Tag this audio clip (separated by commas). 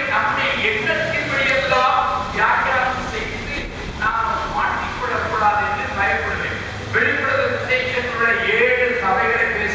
Speech